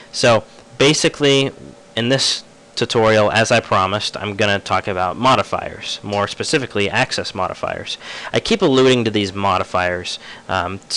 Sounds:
Speech

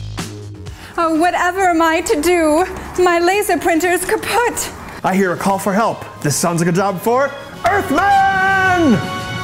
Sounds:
Speech, Music

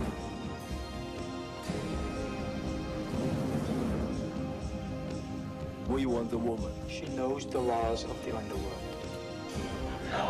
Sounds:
Speech, Music

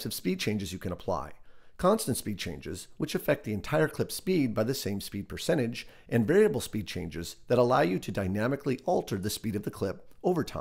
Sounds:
Speech

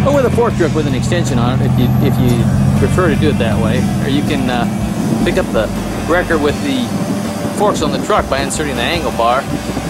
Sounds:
Vehicle, Speech, Music

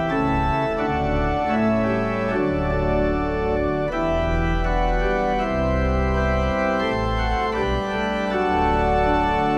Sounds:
Music, Keyboard (musical)

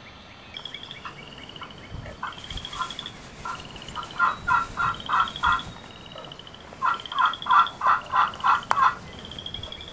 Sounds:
turkey gobbling, Turkey, Fowl, Gobble

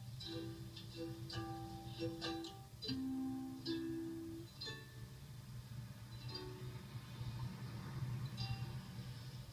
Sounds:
inside a small room, Music

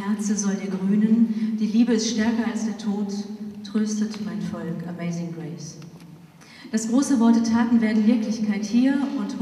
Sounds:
Speech

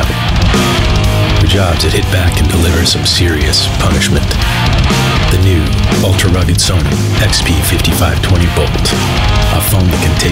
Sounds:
Music, Speech

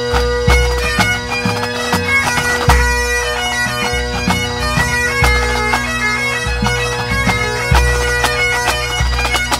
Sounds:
Bagpipes, Wind instrument

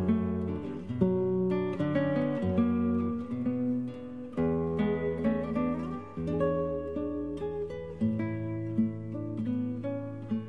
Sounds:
Music

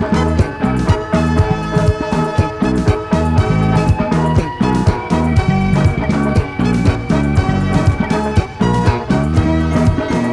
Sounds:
Music

